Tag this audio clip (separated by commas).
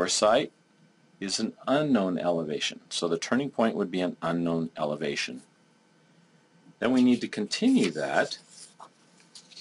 Speech